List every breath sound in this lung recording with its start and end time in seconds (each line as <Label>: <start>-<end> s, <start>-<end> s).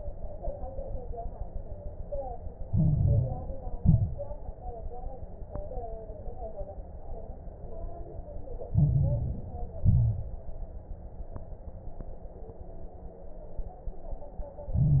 Inhalation: 2.66-3.74 s, 8.70-9.78 s, 14.69-15.00 s
Exhalation: 3.78-4.35 s, 9.82-10.39 s
Crackles: 2.66-3.74 s, 3.78-4.35 s, 8.70-9.78 s, 9.82-10.39 s, 14.69-15.00 s